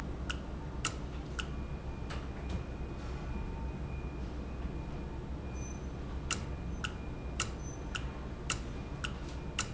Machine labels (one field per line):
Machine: valve